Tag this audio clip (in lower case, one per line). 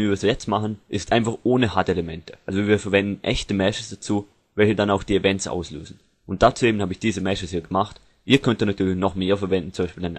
speech